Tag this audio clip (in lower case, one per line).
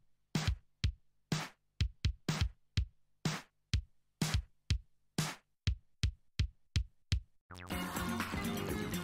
drum machine